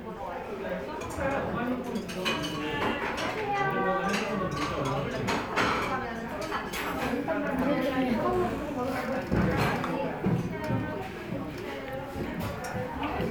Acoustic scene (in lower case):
crowded indoor space